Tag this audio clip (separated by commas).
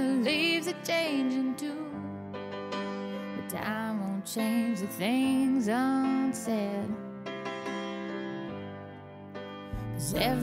Music